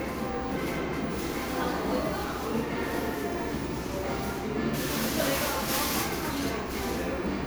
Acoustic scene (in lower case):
cafe